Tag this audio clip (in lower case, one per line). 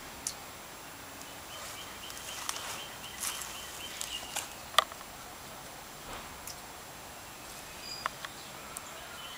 animal